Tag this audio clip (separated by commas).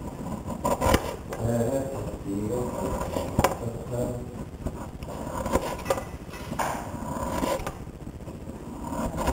Speech